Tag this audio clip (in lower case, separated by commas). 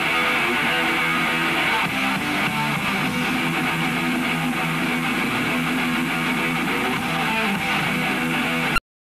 electric guitar, strum, guitar, acoustic guitar, music, musical instrument, plucked string instrument